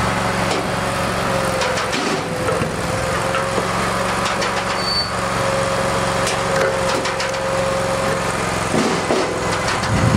Engine running and wood knocking